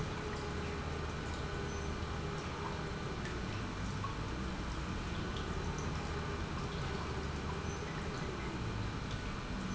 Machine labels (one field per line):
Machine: pump